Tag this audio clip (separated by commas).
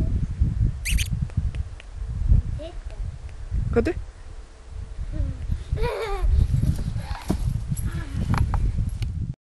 Speech